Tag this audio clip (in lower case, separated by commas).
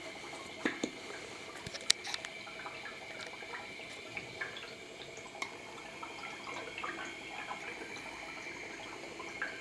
drip, inside a small room